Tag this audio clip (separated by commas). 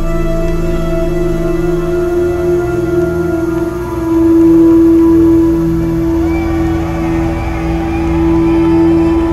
Music, Theme music